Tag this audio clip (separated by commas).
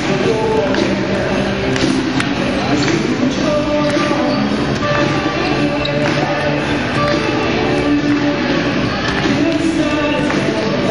Speech, Music